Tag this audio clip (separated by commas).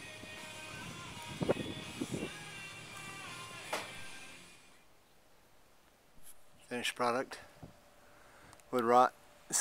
Music, Speech